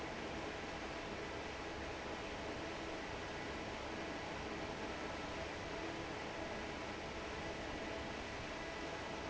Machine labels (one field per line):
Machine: fan